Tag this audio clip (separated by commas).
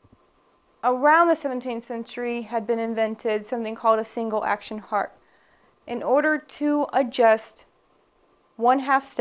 Speech